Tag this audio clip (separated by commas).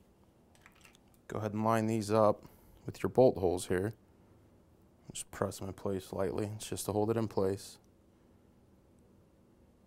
Speech